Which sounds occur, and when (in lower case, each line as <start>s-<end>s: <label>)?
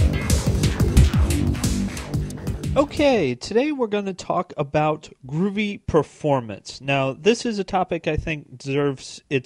0.0s-3.4s: music
0.0s-9.4s: background noise
2.7s-5.1s: male speech
5.2s-5.7s: male speech
5.9s-9.4s: male speech